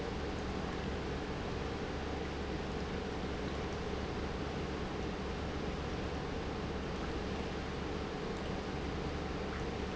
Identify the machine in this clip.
pump